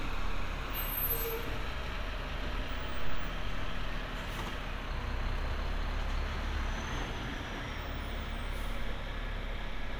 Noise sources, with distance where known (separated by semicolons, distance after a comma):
large-sounding engine